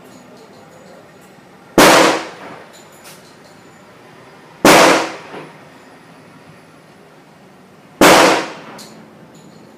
People speaking followed by multiple gunshots